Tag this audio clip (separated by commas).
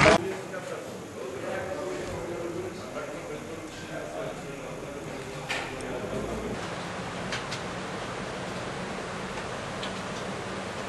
Speech